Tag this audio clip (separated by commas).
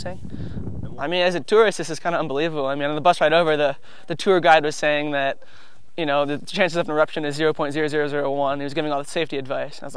Speech